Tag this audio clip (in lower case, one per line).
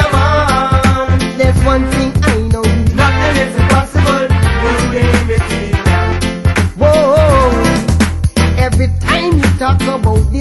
music